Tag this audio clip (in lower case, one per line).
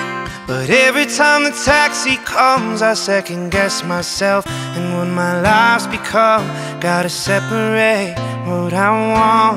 music